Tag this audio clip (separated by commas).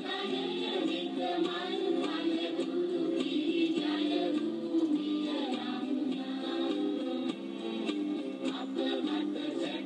Music, Female singing, Choir